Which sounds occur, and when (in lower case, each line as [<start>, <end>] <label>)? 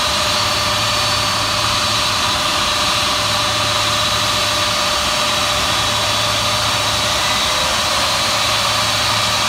[0.00, 9.45] aircraft engine